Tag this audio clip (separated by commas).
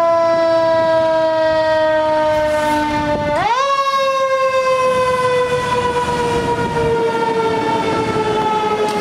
fire truck siren